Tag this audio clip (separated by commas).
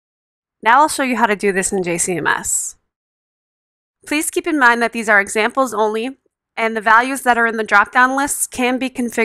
Speech